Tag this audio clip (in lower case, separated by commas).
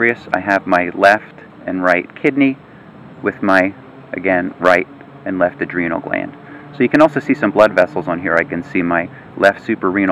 speech, inside a small room